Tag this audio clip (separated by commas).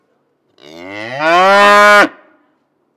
livestock, Animal